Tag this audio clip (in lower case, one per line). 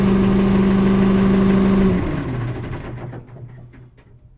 engine